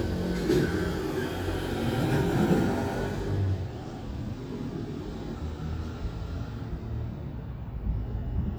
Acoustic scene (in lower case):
residential area